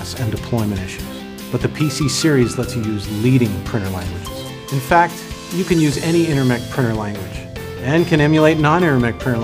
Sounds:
music, speech

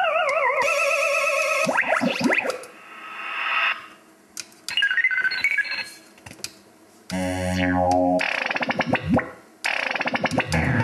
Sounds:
music, sound effect

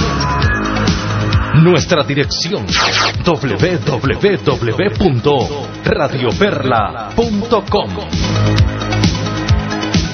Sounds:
speech, music

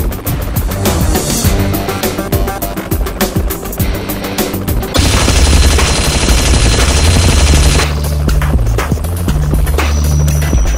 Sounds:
helicopter, music

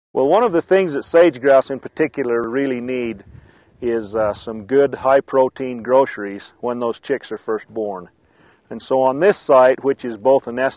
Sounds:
speech

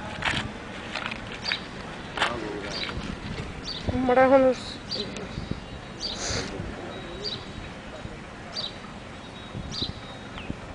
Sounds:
animal, speech

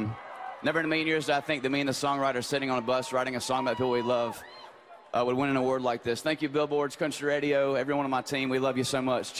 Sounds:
speech

